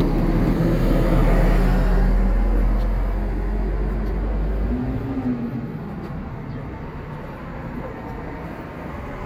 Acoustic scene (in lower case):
street